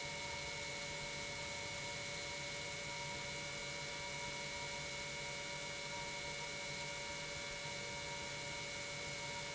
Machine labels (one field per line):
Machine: pump